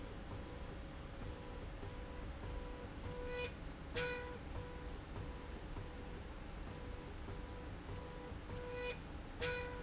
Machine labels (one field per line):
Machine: slide rail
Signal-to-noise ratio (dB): 6 dB